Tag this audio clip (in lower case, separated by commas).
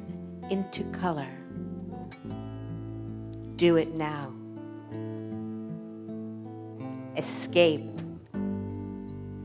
speech, music